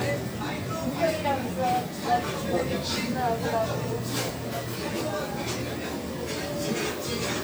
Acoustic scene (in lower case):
crowded indoor space